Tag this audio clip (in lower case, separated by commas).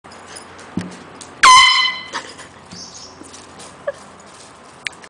pets, animal, dog